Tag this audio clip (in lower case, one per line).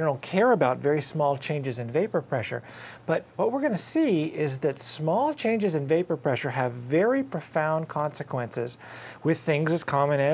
speech